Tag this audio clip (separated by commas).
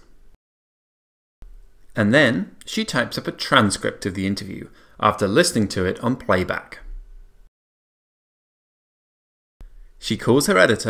Speech